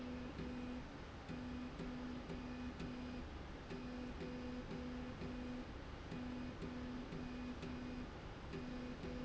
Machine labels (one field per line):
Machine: slide rail